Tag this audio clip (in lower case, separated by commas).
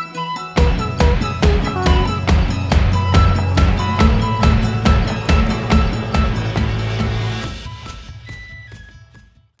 music